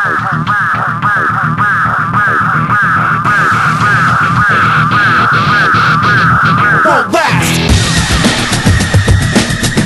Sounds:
music

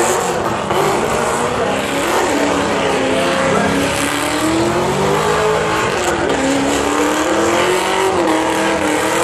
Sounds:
vehicle, car passing by, car, motor vehicle (road)

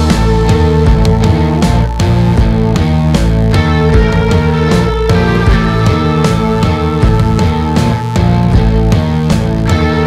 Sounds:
music

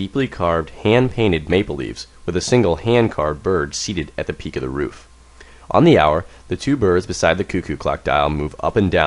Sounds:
speech

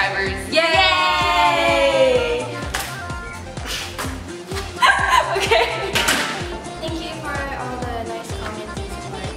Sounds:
speech, music

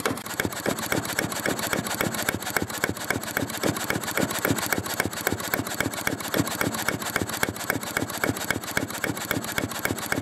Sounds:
engine

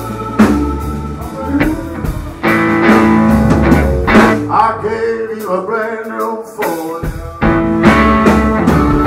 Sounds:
singing, blues, musical instrument, speech, guitar, music, drum kit

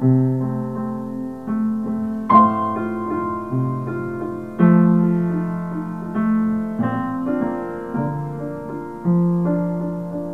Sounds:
music

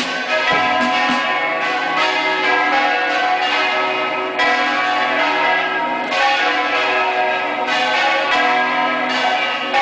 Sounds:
church bell, church bell ringing

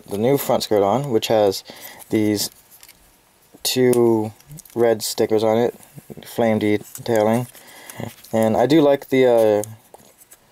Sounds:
speech, inside a small room

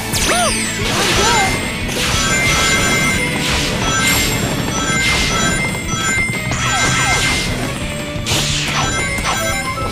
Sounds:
music

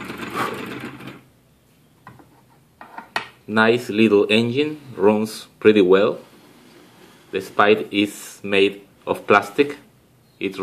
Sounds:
engine, speech

